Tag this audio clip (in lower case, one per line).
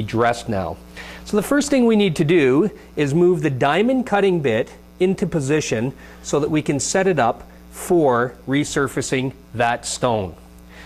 speech